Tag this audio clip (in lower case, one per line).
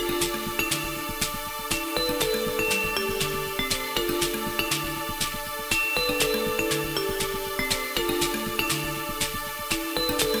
music